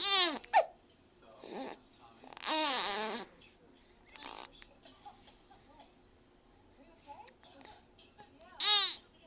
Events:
0.0s-0.4s: baby cry
0.0s-9.2s: television
0.4s-0.7s: hiccup
1.0s-1.2s: man speaking
1.3s-1.7s: baby cry
1.7s-2.3s: man speaking
2.4s-3.2s: baby cry
3.3s-4.2s: female speech
3.3s-4.5s: baby cry
4.8s-5.3s: cough
4.9s-5.8s: breathing
5.6s-5.8s: female speech
5.7s-5.9s: cough
6.7s-7.3s: female speech
6.8s-7.9s: baby cry
7.2s-7.8s: cough
8.0s-8.2s: cough
8.3s-8.5s: female speech
8.5s-8.9s: baby cry

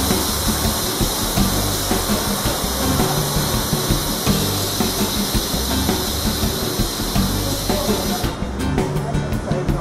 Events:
0.0s-8.4s: hiss
0.0s-9.8s: music
1.8s-2.5s: speech
7.3s-8.3s: speech
8.9s-9.8s: speech

